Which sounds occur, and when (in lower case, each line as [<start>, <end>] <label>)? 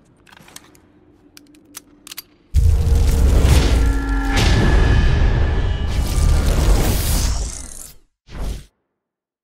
[0.00, 8.09] video game sound
[2.03, 2.35] generic impact sounds
[8.25, 8.69] sound effect